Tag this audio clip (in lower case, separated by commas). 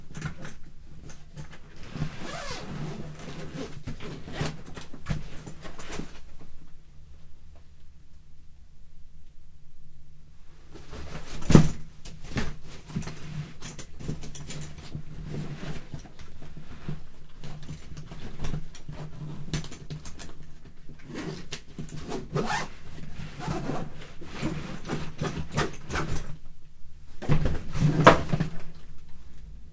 home sounds, zipper (clothing)